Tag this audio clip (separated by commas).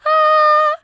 Singing, Female singing, Human voice